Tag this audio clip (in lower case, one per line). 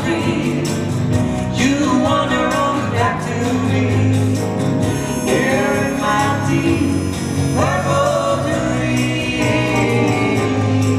music